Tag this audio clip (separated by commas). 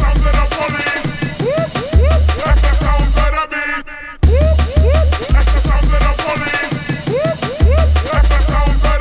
Music